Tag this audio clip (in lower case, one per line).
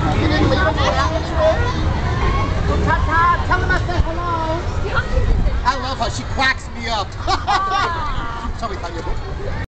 speech